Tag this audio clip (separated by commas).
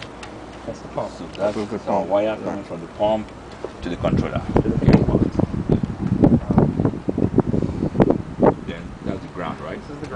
Speech, Wind